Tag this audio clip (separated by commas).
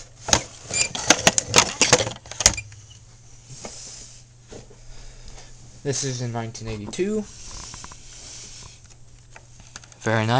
Speech